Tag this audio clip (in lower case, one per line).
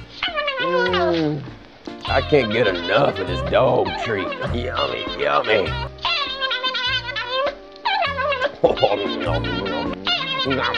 music
speech